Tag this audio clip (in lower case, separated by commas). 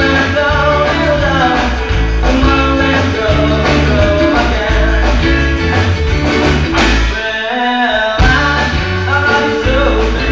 music, rock and roll